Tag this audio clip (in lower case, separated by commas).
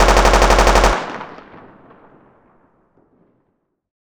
explosion, gunshot